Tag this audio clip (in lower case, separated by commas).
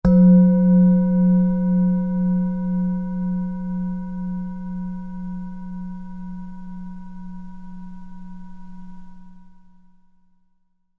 musical instrument, music